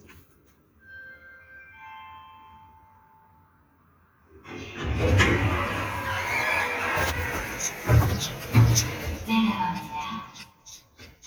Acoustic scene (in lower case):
elevator